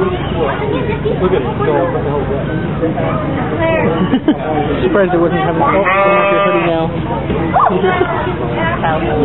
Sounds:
goat
animal
speech

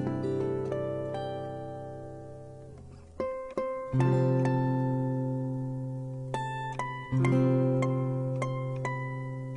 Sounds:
music

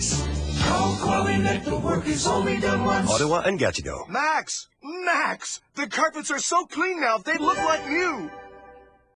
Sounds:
music
speech

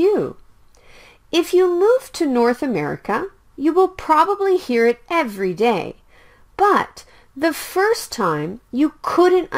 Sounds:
speech

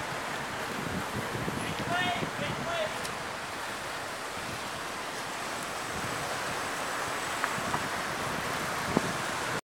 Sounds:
speech
vehicle

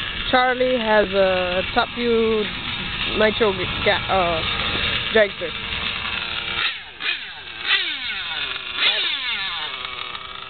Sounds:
speech
outside, urban or man-made

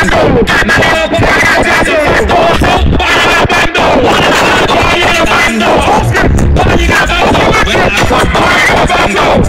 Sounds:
speech

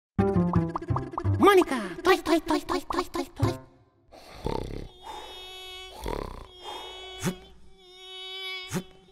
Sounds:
mosquito buzzing

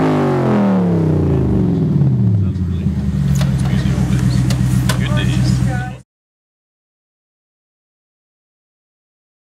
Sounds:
vroom
vehicle
car
speech

